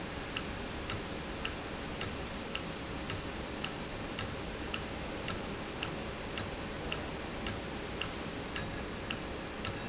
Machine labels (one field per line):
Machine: valve